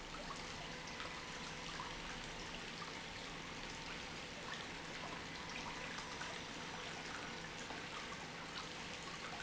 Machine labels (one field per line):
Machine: pump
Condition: normal